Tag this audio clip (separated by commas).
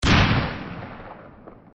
Explosion